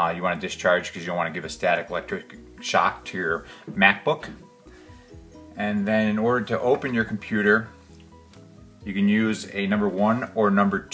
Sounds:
Music, Speech

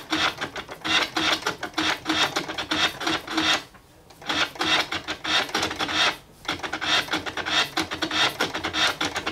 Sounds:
Scratching (performance technique)

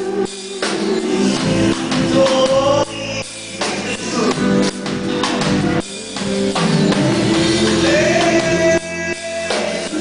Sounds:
Male singing, Music

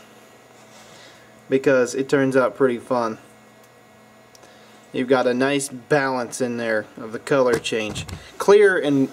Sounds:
Speech

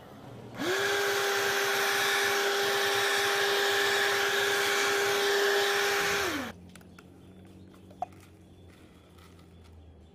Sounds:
vacuum cleaner cleaning floors

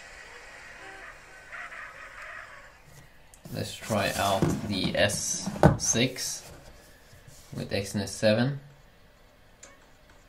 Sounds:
Speech

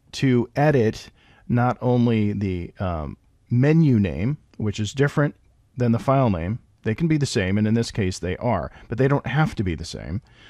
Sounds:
Narration, Speech

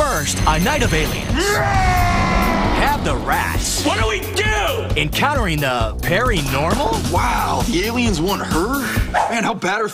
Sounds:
Music, Speech

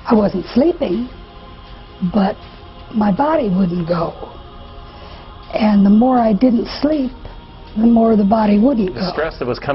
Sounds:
Music, Speech

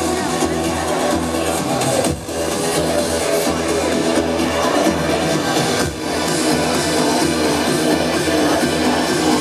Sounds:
Music

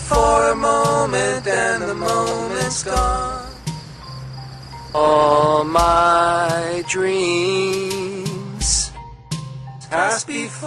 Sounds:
Music, Rustling leaves

